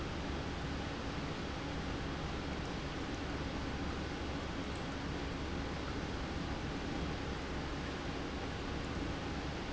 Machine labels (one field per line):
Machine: pump